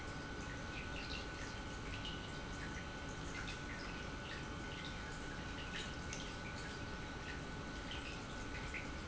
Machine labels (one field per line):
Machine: pump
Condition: normal